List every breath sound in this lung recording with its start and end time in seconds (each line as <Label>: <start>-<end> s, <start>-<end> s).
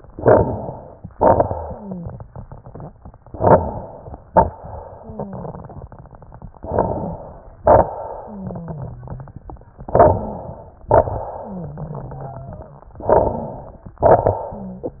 Inhalation: 0.00-1.11 s, 3.35-4.17 s, 6.56-7.56 s, 9.89-10.87 s, 13.01-13.99 s
Exhalation: 1.10-3.23 s, 4.28-6.58 s, 7.65-9.79 s, 10.88-12.95 s, 14.04-15.00 s
Wheeze: 1.43-2.10 s, 4.92-5.97 s, 8.23-9.36 s, 11.38-12.95 s
Crackles: 0.00-1.11 s, 3.35-4.17 s, 4.26-4.91 s, 6.56-7.56 s, 7.61-8.24 s, 10.86-11.36 s, 13.01-13.97 s, 14.04-15.00 s